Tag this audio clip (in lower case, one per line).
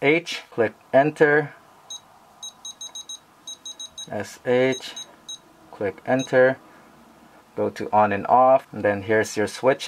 speech
inside a small room